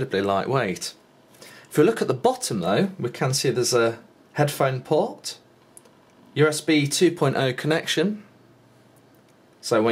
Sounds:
speech

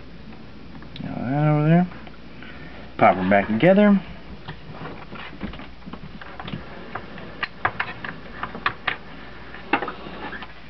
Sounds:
speech
inside a small room

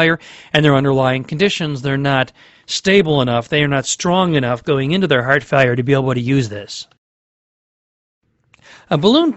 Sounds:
speech

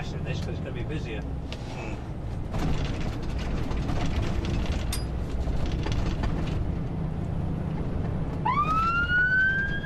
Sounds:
speech

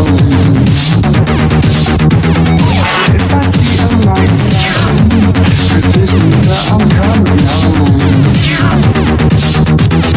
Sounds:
techno

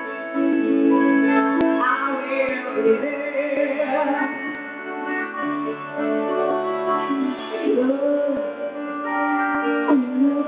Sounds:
music

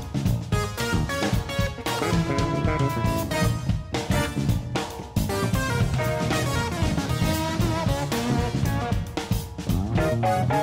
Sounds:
music

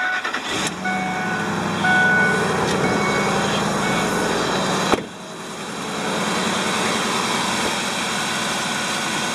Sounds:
vehicle
car

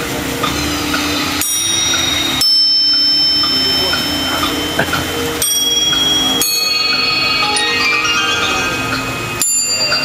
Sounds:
speech
music

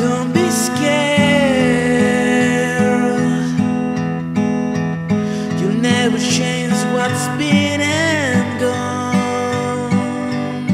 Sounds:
music

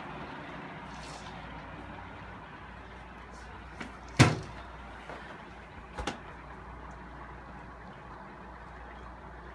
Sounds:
boiling

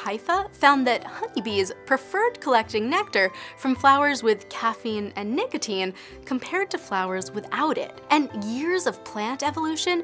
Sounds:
mosquito buzzing

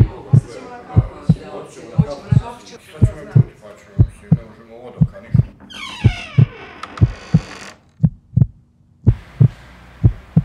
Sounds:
heartbeat

